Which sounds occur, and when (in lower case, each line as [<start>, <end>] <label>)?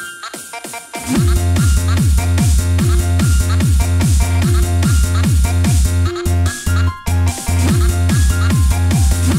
[0.00, 9.35] music